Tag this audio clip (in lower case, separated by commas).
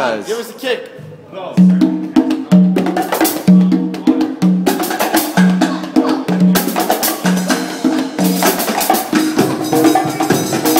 inside a large room or hall, speech, music, drum, musical instrument